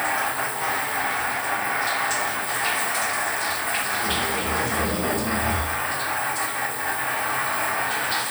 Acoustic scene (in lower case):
restroom